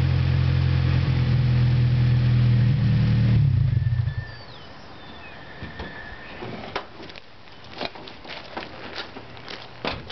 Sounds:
outside, rural or natural, car, vehicle

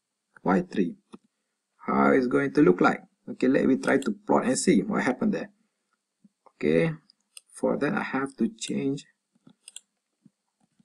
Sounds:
inside a small room, clicking, speech

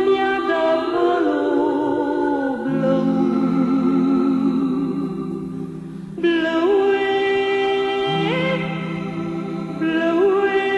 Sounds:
music, opera

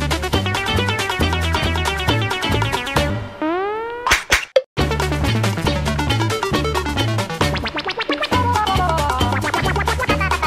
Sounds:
playing synthesizer

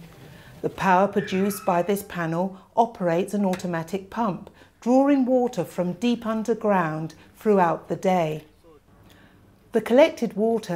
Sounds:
speech

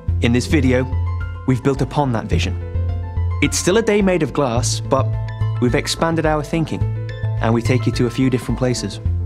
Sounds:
music, speech

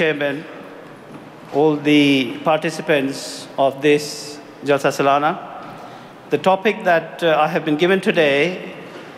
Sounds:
man speaking, speech

